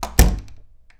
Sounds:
home sounds, Slam, Door

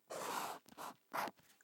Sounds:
home sounds, Writing

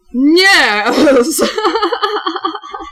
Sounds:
Laughter, Human voice

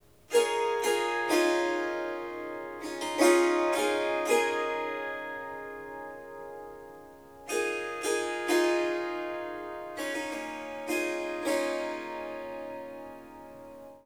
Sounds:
Musical instrument, Music, Harp

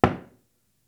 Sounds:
home sounds, Knock, Door, Wood

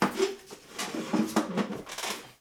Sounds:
Squeak

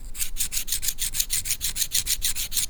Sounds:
Tools

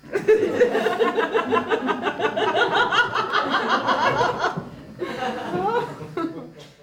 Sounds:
Laughter, Human voice

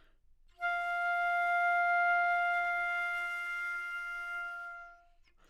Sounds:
Wind instrument, Musical instrument, Music

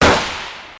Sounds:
Explosion, Gunshot

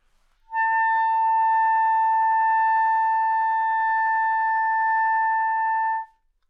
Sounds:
Music, Musical instrument, Wind instrument

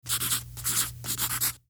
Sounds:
Domestic sounds, Writing

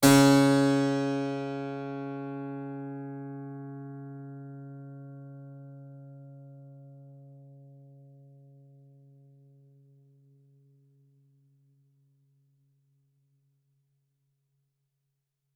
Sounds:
Keyboard (musical), Music, Musical instrument

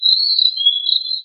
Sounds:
Wild animals, Bird, Animal, bird call, tweet

